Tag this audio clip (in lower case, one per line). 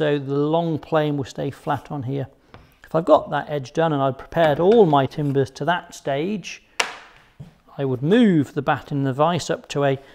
planing timber